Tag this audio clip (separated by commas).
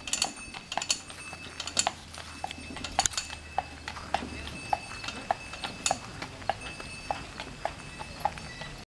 Clip-clop, Animal